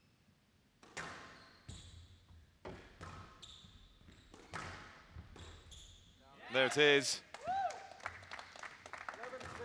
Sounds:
playing squash

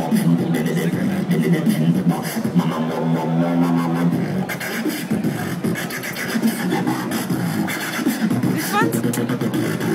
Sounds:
dubstep, music, speech

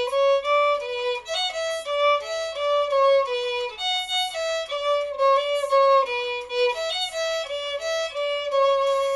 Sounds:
musical instrument, fiddle, music

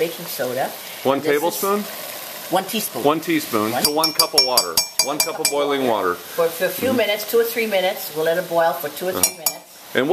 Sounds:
speech

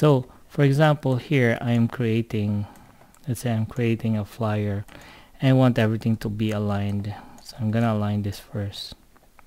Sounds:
speech

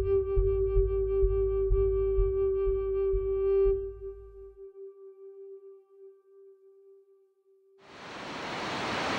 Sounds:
surf

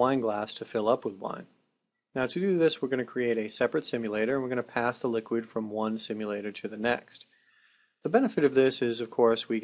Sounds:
speech

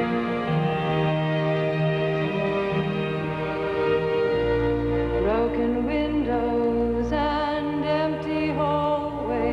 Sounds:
music

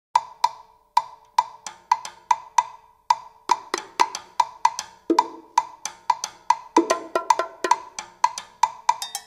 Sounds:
music, wood block

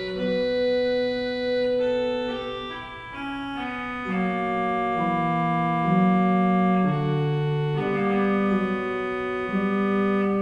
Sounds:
organ, musical instrument, piano, music

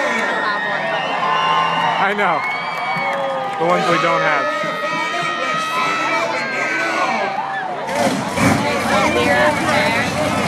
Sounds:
vehicle, speech

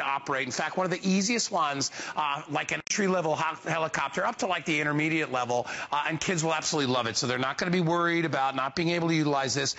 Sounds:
speech

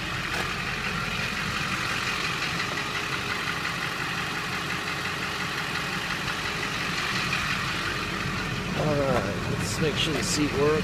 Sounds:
vehicle, motor vehicle (road)

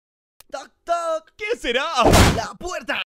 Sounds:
speech, door

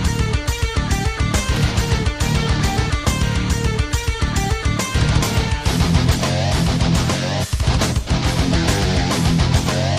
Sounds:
music

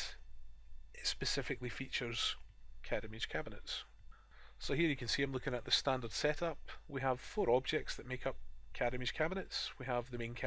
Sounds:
speech

